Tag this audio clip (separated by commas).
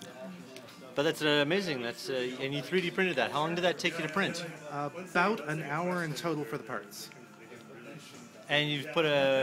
Music, Speech